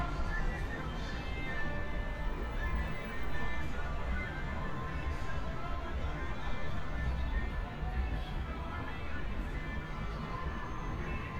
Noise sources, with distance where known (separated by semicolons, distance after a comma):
music from an unclear source, far